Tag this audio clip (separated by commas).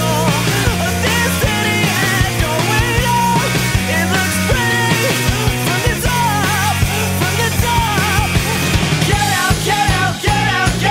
Pop music, Music